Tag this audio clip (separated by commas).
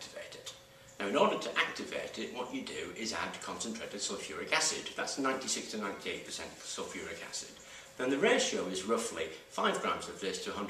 inside a small room, Speech